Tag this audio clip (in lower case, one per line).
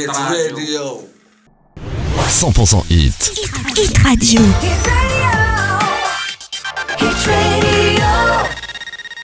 music
speech